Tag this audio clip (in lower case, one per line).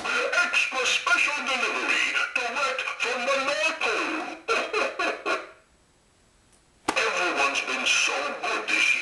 speech